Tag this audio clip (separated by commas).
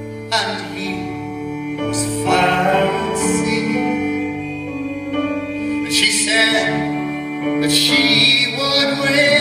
inside a large room or hall, Singing, Guitar, Musical instrument, Music